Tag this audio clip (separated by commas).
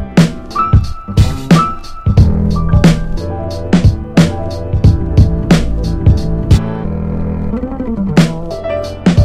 Music, Sampler